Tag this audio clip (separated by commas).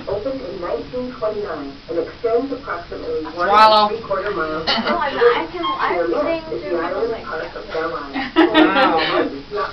Speech